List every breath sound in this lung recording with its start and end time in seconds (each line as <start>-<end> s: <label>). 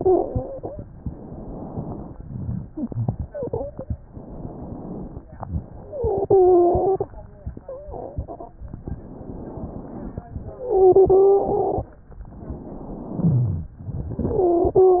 0.00-0.82 s: wheeze
0.93-2.13 s: inhalation
2.14-2.70 s: exhalation
2.14-2.70 s: rhonchi
2.66-3.91 s: wheeze
4.08-5.28 s: inhalation
5.31-5.86 s: exhalation
5.31-5.86 s: rhonchi
5.83-7.12 s: wheeze
5.88-7.14 s: wheeze
7.61-8.27 s: wheeze
8.84-10.25 s: inhalation
10.46-11.92 s: exhalation
10.46-11.92 s: wheeze
12.22-13.21 s: inhalation
13.21-13.79 s: exhalation
13.21-13.79 s: rhonchi
14.16-15.00 s: wheeze